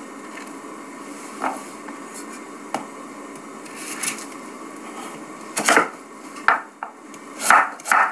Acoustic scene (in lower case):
kitchen